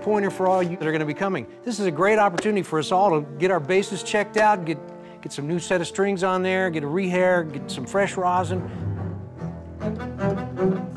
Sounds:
Speech, Music

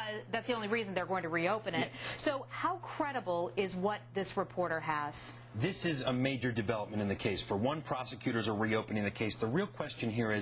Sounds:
Speech

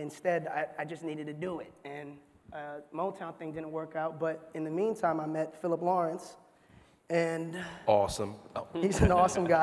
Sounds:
Speech

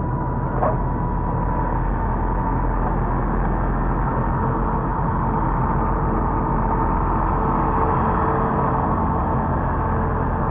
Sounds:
Truck

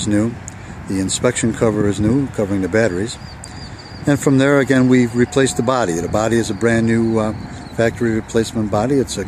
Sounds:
outside, rural or natural, Speech

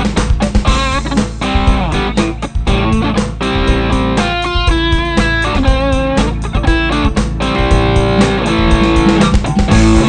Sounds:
Music, Electric guitar, Rock music, Musical instrument, Plucked string instrument, Guitar, playing electric guitar

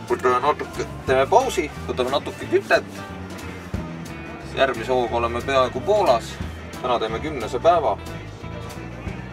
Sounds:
Speech, Music

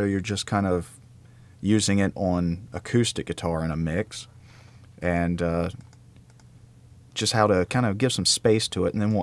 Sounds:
Speech

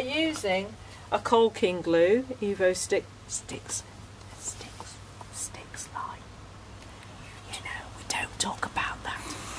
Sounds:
Whispering, Speech

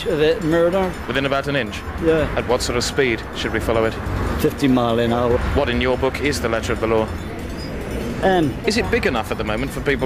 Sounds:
Music, Speech

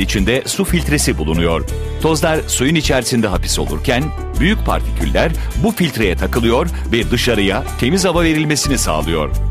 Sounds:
Music, Speech

